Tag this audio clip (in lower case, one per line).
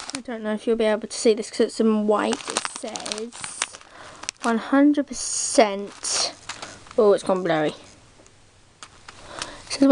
speech